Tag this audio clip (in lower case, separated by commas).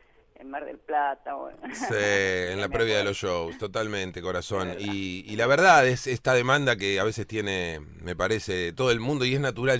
speech